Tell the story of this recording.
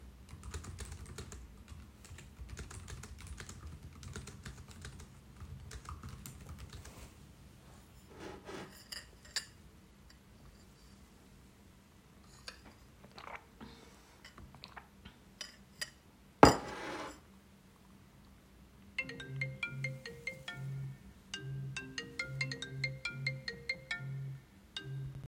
I was typing on the keyboard, then I picked up a cup, took two sips, swallowed, and put the cup back on the table. The phone started ringing.